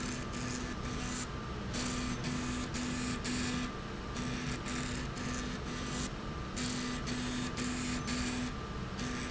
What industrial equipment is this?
slide rail